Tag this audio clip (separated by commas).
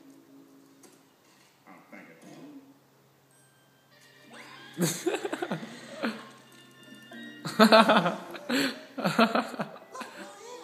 Music